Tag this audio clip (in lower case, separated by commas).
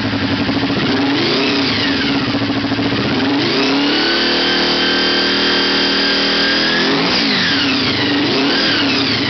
motorcycle, vehicle